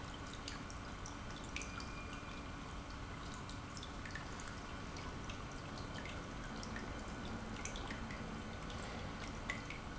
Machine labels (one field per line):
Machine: pump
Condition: normal